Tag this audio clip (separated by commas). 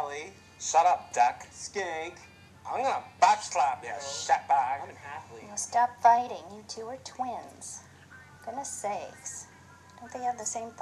Music, Speech